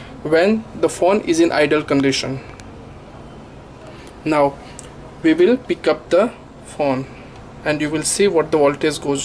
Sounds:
speech

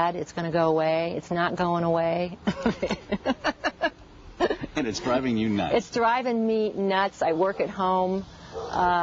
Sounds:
conversation, speech

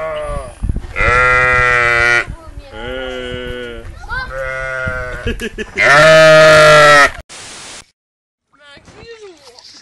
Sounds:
animal, sheep

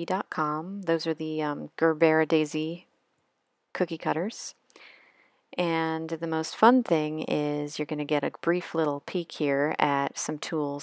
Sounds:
speech

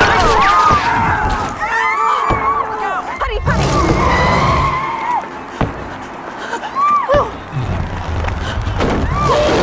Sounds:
vehicle, speech, motor vehicle (road)

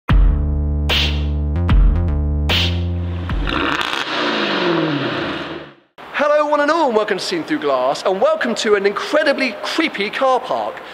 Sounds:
speech, inside a large room or hall, music, vehicle

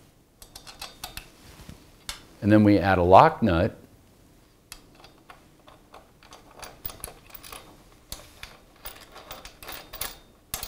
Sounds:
inside a small room, speech

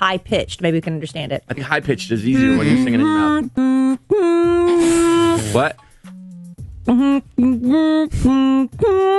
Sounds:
music, speech, female singing

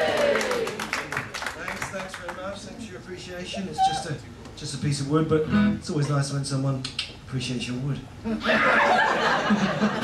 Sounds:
music, speech

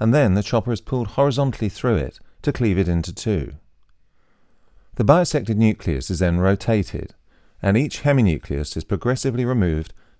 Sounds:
speech

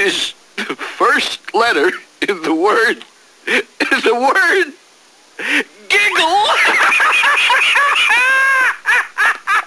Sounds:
speech

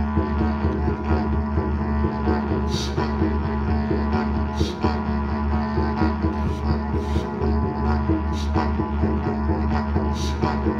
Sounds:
playing didgeridoo

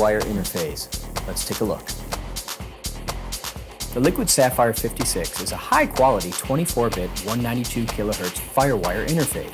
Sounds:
speech, music

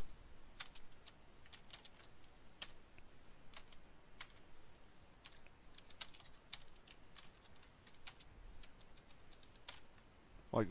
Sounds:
computer keyboard

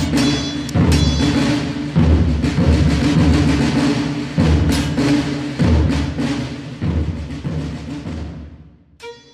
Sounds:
music

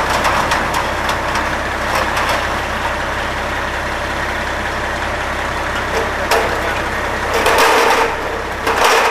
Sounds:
speech, vehicle

